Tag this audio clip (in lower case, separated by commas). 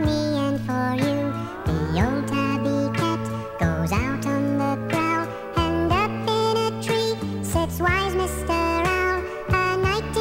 lullaby, music